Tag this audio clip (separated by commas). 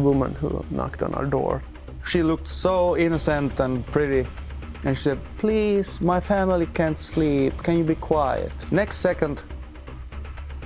Speech, Music